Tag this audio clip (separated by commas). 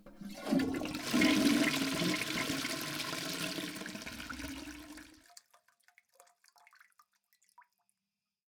Domestic sounds, Water, Toilet flush